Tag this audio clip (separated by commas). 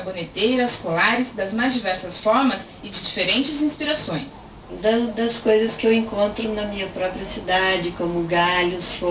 Speech